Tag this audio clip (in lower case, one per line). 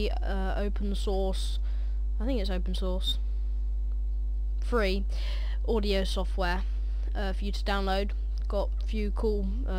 speech